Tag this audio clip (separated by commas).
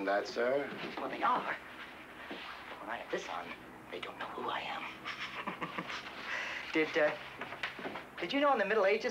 Speech